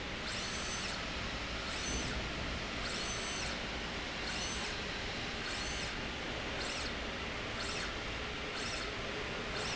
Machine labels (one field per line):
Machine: slide rail